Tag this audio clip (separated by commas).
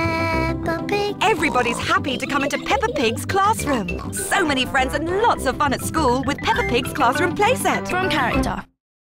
Oink, Music, Speech